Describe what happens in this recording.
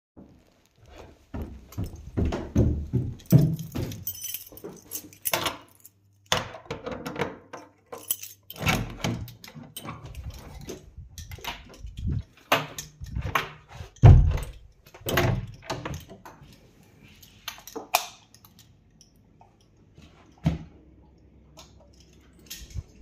Opening door and closing with key entering the flat then opening and closing a second door and finally turning on the light.